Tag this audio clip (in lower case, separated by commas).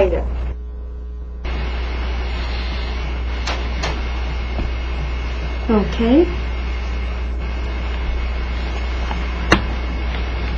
speech